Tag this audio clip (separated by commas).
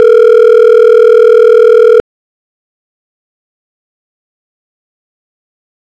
Alarm, Telephone